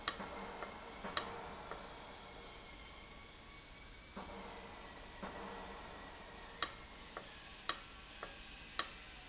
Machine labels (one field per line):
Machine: valve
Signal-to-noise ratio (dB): 6 dB